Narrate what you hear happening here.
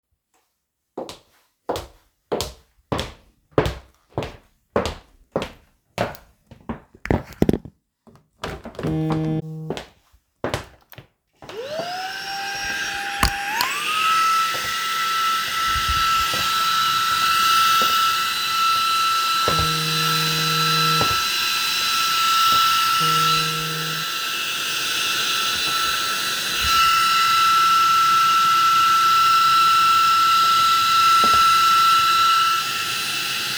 I took some steps in the room. My phone rang while I was cleaning, footsteps could be heard in the room. The phone rang again.